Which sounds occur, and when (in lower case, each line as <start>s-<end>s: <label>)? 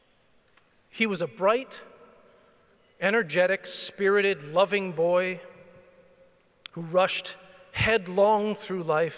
0.0s-9.1s: mechanisms
0.5s-0.6s: tick
0.9s-1.8s: male speech
2.2s-2.6s: breathing
3.0s-5.5s: male speech
6.6s-6.7s: tick
6.7s-7.4s: male speech
7.7s-9.1s: male speech